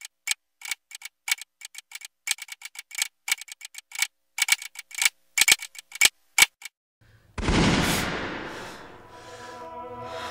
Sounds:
inside a small room, Music

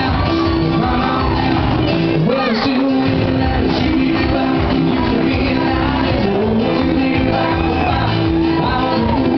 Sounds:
Music, Speech

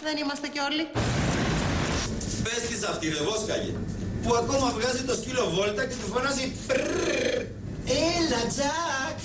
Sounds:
Music, Speech

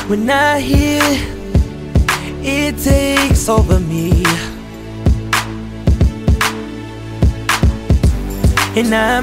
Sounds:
Music

